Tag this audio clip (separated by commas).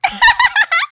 Laughter, Human voice